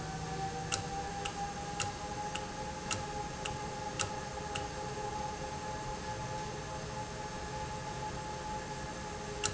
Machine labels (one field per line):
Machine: valve